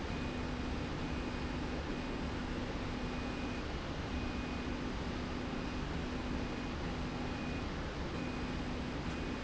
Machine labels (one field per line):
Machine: slide rail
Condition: normal